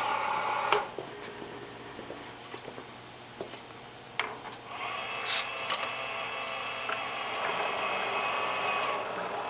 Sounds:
inside a large room or hall

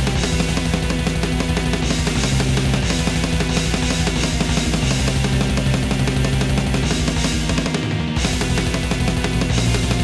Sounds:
Musical instrument, Music, Plucked string instrument

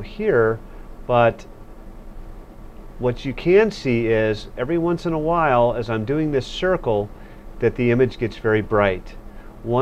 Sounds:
Speech

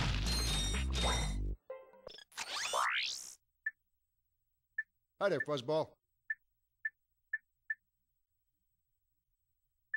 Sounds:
Speech, Music

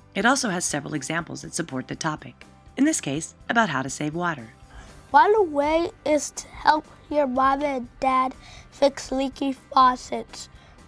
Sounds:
Music, Speech

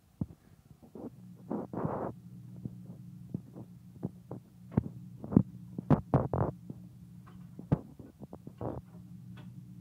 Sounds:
inside a small room

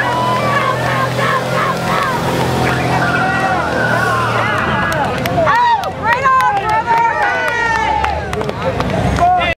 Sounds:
Speech, Truck, Air brake, Vehicle

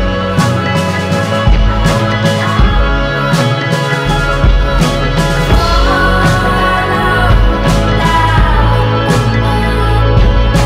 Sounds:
Psychedelic rock, Music

